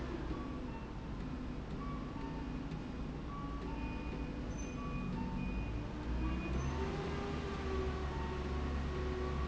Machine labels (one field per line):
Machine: slide rail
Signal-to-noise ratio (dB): -6 dB